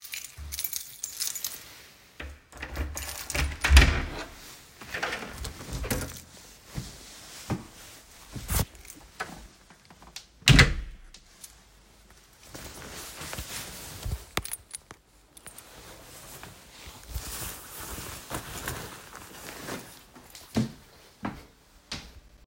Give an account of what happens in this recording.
I arrive home and walk to the entrance door. I take my keychain, unlock the door, and open it. I walk inside while footsteps are heard and then close the door behind me.